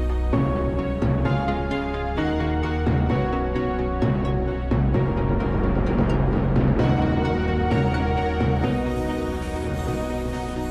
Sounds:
music

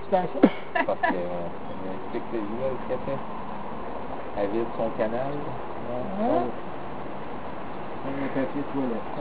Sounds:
speech

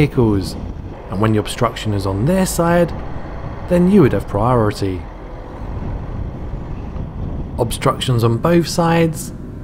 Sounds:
speech

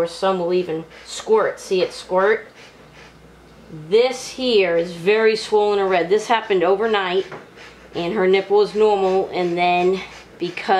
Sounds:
speech

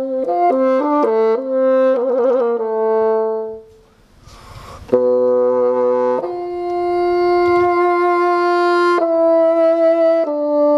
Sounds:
playing bassoon

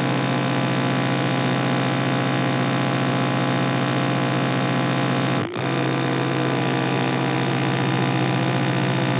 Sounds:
sound effect

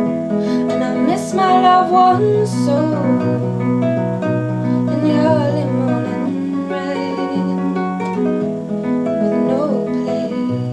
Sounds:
music

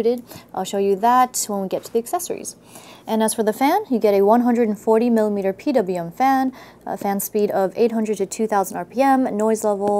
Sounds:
speech

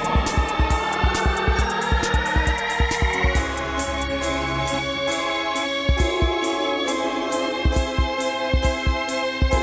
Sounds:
music

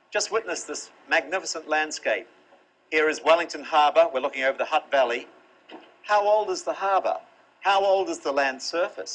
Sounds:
speech

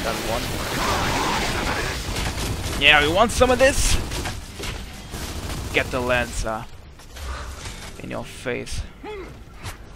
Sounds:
speech

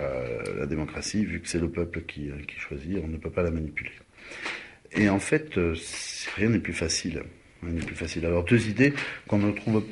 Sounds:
speech

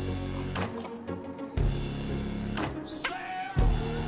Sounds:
music

